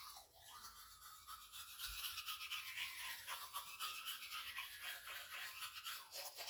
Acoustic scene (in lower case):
restroom